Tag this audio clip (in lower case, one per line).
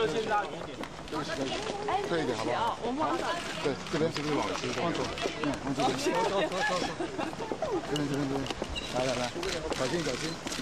speech